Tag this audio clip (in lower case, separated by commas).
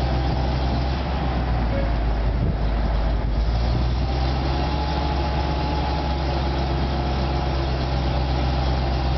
vehicle